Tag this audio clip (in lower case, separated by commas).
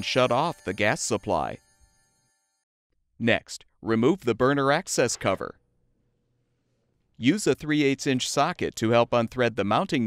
speech